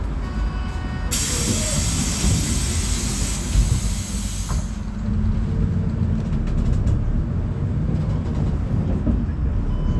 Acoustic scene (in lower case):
bus